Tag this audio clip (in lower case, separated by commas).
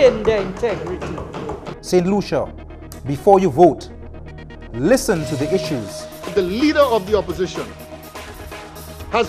speech, music, television